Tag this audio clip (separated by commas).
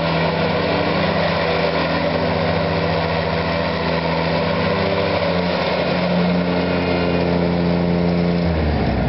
Lawn mower, Vehicle